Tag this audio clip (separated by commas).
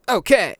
Male speech, Speech, Human voice